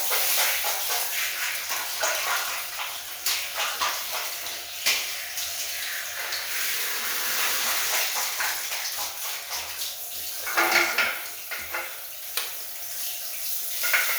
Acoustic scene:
restroom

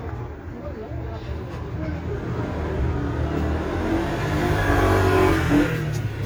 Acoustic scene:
street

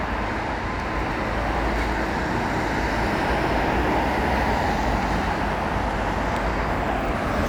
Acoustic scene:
street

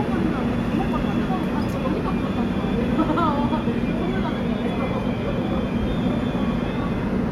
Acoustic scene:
subway station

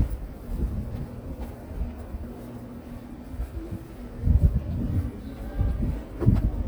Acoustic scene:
residential area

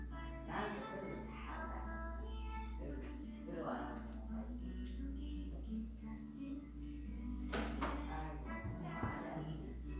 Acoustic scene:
crowded indoor space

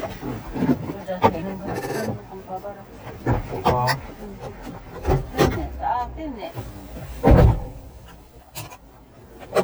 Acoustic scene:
car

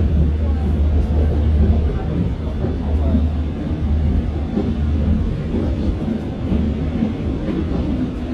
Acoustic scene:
subway train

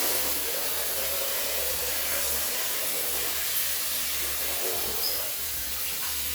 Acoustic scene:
restroom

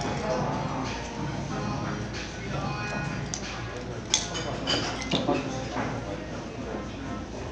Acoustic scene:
crowded indoor space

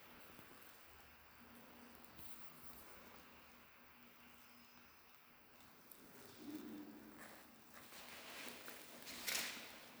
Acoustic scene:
elevator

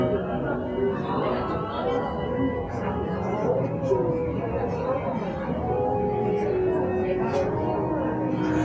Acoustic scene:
cafe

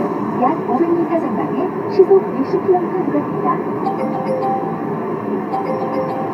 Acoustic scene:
car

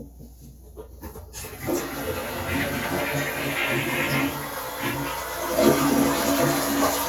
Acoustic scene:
restroom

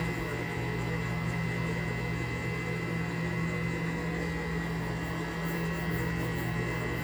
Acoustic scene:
kitchen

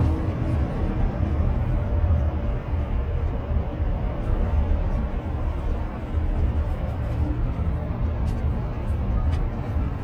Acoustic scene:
car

